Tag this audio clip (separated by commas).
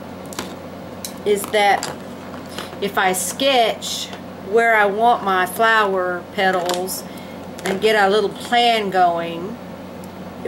Speech